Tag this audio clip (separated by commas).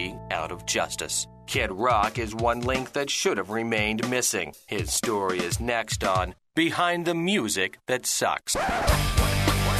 Punk rock, Music, Speech